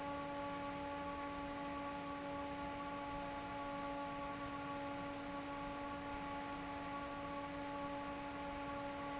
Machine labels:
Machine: fan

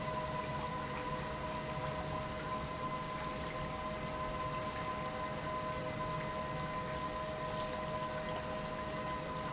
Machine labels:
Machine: pump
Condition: normal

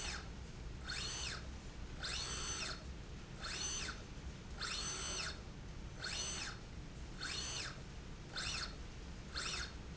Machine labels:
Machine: slide rail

